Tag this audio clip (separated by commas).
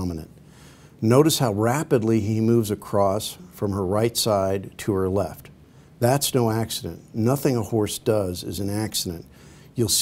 Speech